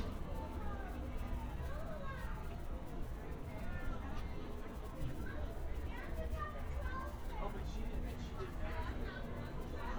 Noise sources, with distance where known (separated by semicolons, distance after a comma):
person or small group talking, near